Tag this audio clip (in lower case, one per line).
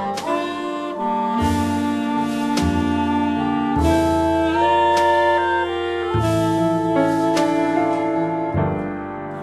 music